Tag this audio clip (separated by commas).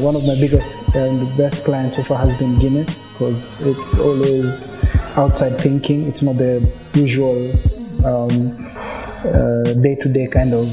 Speech, Music